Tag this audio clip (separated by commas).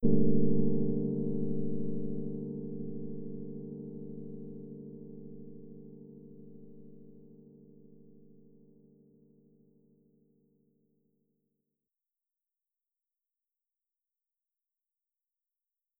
Keyboard (musical), Piano, Musical instrument, Music